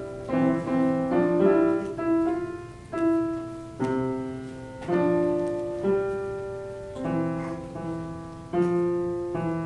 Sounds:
musical instrument
keyboard (musical)
piano

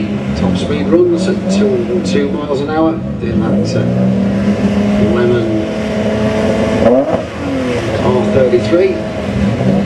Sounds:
speech

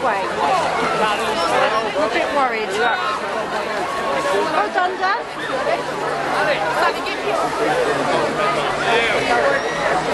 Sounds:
speech

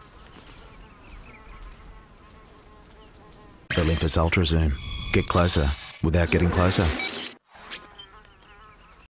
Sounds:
single-lens reflex camera
speech

